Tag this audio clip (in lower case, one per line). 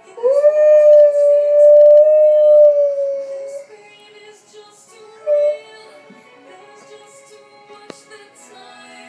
dog howling